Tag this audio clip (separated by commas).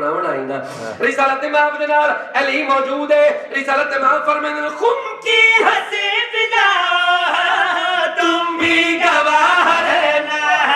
Music, Speech